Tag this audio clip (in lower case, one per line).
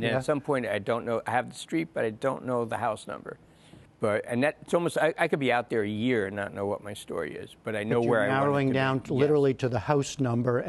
speech